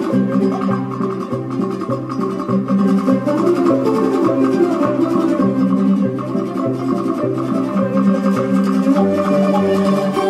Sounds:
music, organ

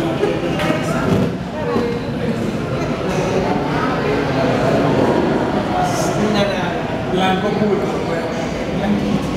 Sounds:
speech, tap

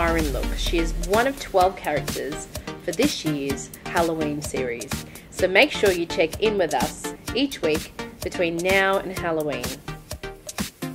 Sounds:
speech, music

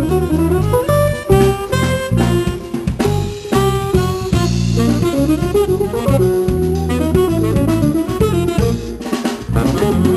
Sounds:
brass instrument, plucked string instrument, guitar, drum, drum kit, music, saxophone, playing drum kit, musical instrument

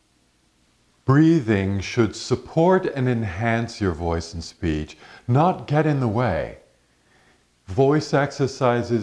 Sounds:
speech

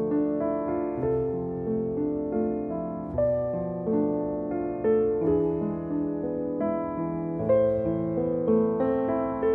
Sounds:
music, tender music

